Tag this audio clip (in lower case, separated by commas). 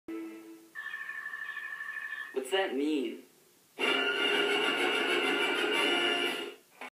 speech, television, music